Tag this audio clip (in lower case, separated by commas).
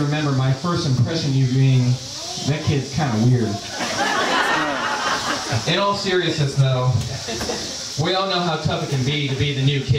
laughter, speech